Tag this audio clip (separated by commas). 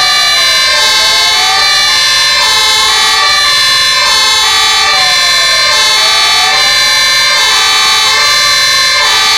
fire truck siren